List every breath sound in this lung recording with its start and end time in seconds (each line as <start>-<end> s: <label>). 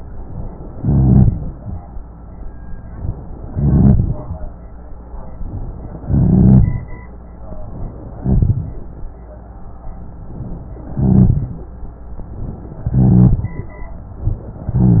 0.72-1.60 s: rhonchi
0.72-1.80 s: inhalation
3.45-4.33 s: inhalation
3.51-4.18 s: rhonchi
6.05-6.89 s: inhalation
6.05-6.89 s: rhonchi
8.12-8.86 s: inhalation
8.22-8.77 s: rhonchi
10.87-11.71 s: inhalation
10.87-11.71 s: rhonchi
12.86-13.70 s: inhalation
12.86-13.70 s: rhonchi